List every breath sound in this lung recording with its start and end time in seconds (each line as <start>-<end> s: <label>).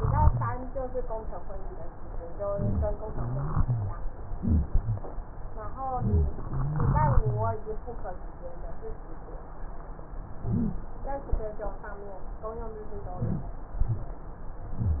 0.00-0.55 s: rhonchi
2.50-2.94 s: inhalation
2.50-2.94 s: rhonchi
3.04-3.99 s: exhalation
3.04-3.99 s: rhonchi
5.92-6.42 s: rhonchi
5.94-6.42 s: inhalation
6.47-7.59 s: exhalation
6.47-7.59 s: rhonchi
10.40-10.93 s: inhalation
10.40-10.93 s: wheeze
13.15-13.68 s: inhalation